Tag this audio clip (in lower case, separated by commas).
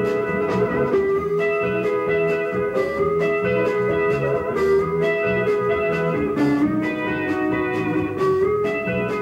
music, slide guitar